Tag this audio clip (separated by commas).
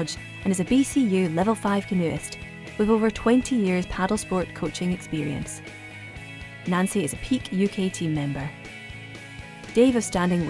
Music, Speech